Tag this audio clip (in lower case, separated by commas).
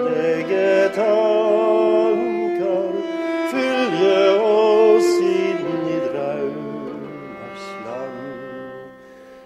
bowed string instrument, inside a small room, music, musical instrument